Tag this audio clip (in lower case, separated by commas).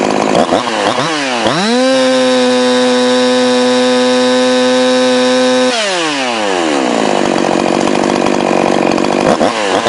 chainsawing trees, chainsaw